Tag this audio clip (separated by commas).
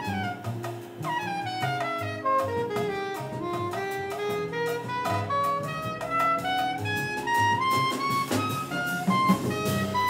playing clarinet